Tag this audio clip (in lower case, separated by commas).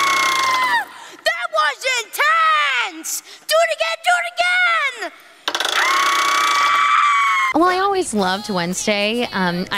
music, speech